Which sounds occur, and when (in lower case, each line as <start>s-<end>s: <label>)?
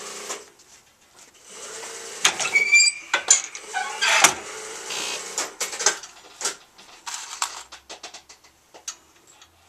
0.0s-0.5s: tools
0.0s-9.6s: background noise
0.5s-1.3s: surface contact
1.4s-2.5s: tools
2.5s-3.0s: squeal
3.1s-6.1s: tools
6.4s-6.6s: tools
6.8s-7.6s: surface contact
7.0s-8.5s: tools
8.7s-9.4s: tools